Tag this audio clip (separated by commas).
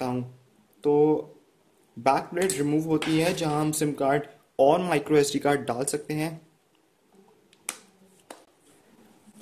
inside a small room, Speech